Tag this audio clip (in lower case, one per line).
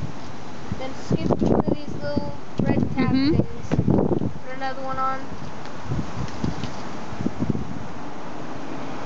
speech
rustling leaves